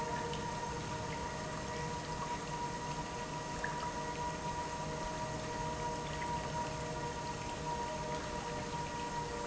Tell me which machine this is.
pump